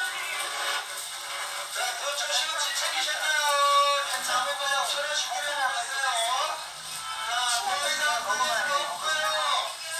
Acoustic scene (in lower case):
crowded indoor space